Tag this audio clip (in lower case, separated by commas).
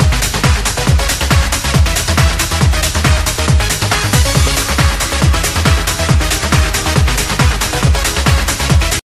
music